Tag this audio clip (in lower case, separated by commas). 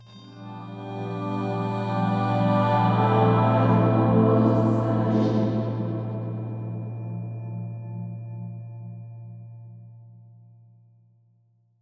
singing, musical instrument, human voice, music